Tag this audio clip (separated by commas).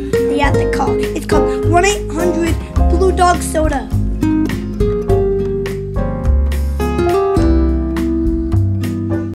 Speech, Music